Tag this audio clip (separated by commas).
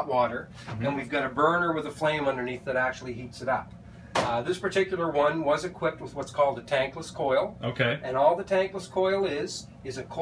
Speech